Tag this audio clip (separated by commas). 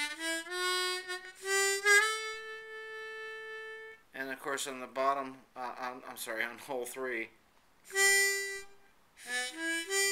Music, inside a small room, Harmonica, Speech